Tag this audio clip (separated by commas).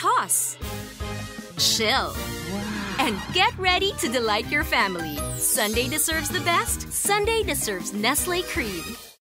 Music, Speech